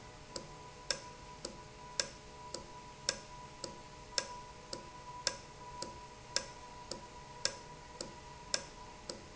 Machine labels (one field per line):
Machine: valve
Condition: normal